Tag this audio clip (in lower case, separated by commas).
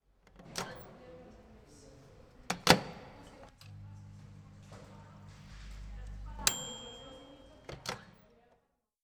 bell, domestic sounds, microwave oven